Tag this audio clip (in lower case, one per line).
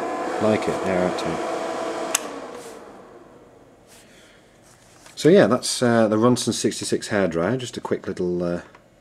speech